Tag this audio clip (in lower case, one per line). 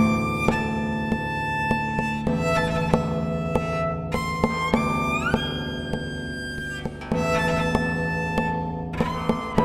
music